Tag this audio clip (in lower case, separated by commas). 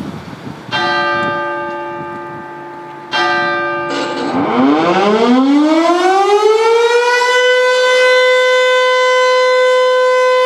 civil defense siren